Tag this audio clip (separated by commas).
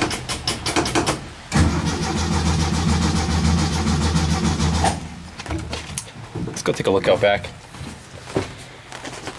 Car, Vehicle, Speech, inside a large room or hall